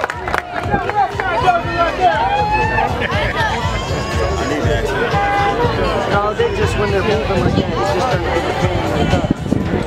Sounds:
music, speech

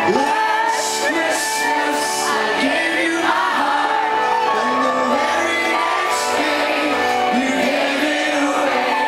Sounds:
male singing, music

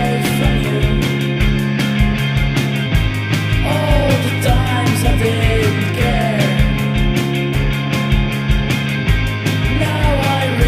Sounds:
music

